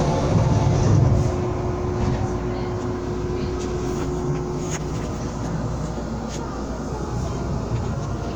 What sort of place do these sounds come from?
subway train